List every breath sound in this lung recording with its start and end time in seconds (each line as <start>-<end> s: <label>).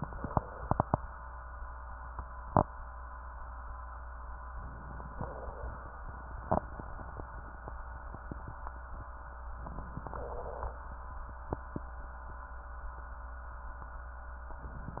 4.50-5.16 s: inhalation
5.16-5.89 s: exhalation
9.59-10.14 s: inhalation
10.13-10.86 s: exhalation